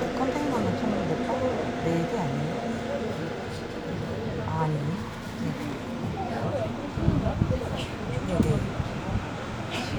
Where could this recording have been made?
on a subway train